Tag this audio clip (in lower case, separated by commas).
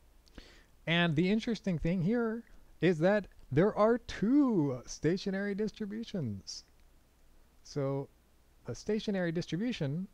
narration